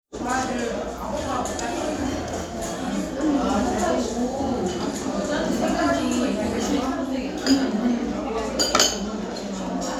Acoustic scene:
restaurant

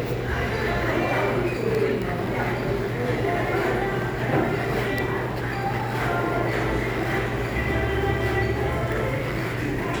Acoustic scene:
crowded indoor space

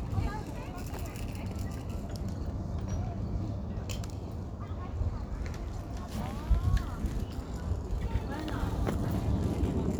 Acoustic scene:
residential area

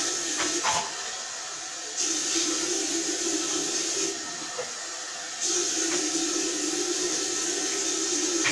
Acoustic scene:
restroom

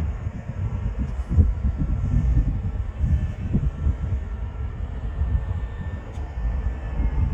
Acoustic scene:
residential area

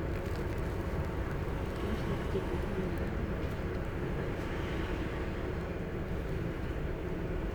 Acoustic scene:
bus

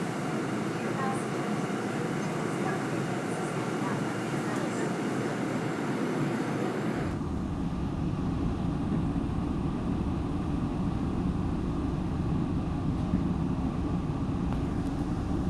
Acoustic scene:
subway train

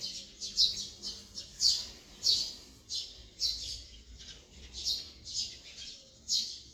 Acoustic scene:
park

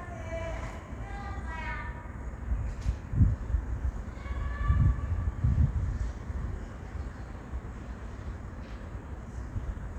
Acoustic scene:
residential area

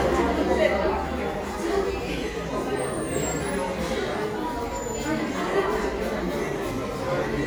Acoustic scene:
cafe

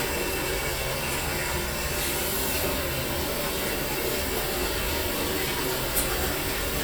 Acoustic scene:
restroom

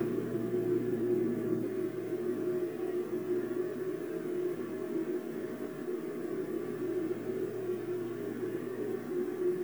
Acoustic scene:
subway train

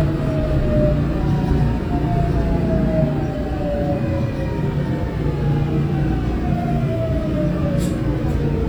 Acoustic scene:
subway train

